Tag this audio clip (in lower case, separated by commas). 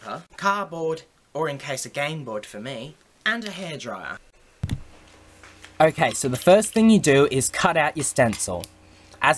speech